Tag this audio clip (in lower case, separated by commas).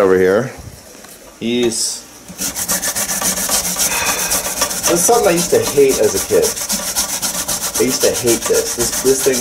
rub, filing (rasp)